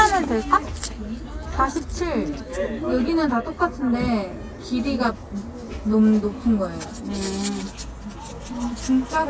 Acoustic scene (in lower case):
crowded indoor space